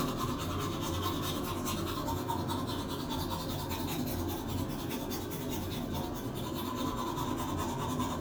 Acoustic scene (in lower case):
restroom